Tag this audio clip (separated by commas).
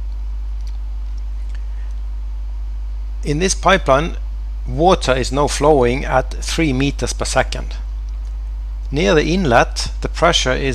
Speech